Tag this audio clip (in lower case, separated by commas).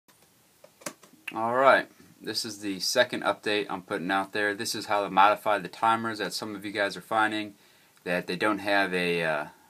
speech